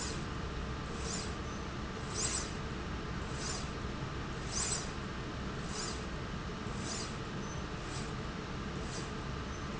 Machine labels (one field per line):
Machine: slide rail